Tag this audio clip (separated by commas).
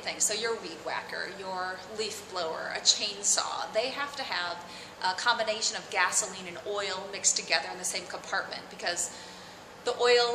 Speech